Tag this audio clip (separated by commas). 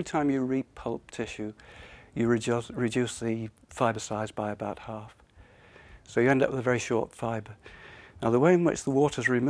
Speech